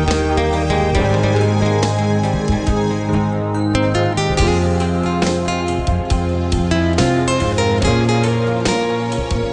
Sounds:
musical instrument
plucked string instrument
acoustic guitar
music
guitar

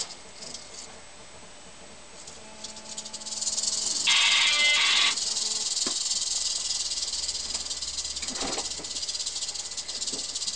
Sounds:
snake rattling

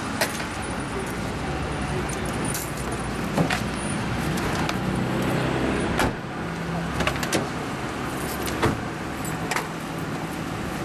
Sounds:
outside, urban or man-made
car
vehicle

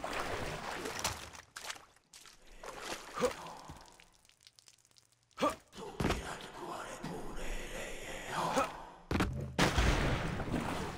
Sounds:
speech

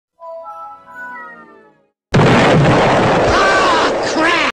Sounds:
sound effect

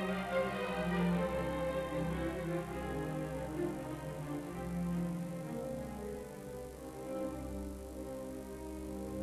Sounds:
music

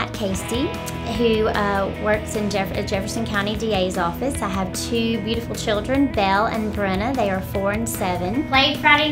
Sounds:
speech
music

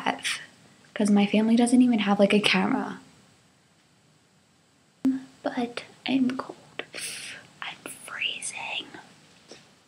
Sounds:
speech

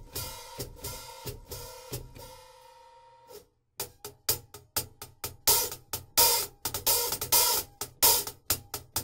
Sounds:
music

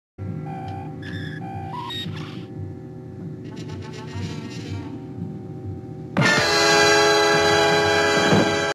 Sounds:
music

